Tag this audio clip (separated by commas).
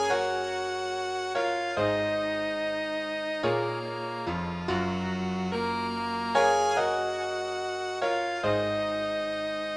Musical instrument, Music